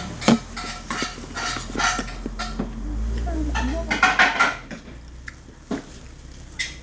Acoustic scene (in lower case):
restaurant